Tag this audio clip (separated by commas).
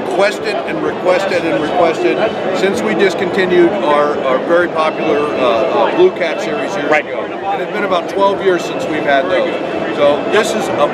Music, Speech